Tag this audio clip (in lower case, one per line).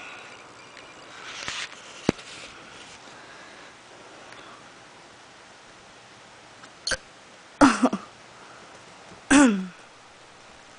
hiccup